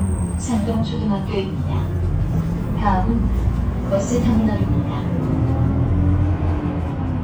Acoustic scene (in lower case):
bus